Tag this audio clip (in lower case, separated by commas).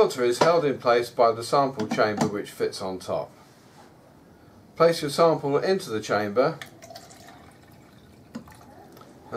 speech, inside a small room